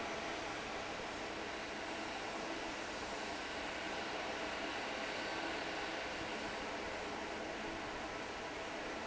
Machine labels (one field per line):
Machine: fan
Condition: normal